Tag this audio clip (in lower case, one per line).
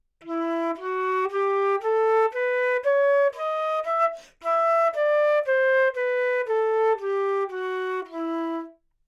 musical instrument
music
wind instrument